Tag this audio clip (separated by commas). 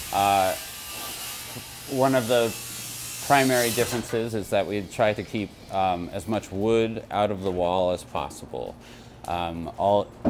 Speech